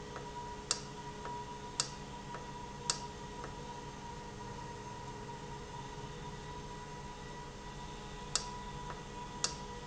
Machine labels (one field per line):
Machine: valve